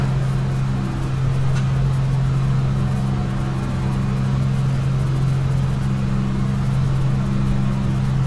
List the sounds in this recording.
large-sounding engine